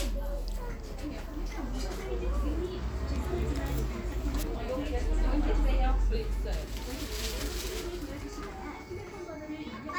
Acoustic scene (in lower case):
crowded indoor space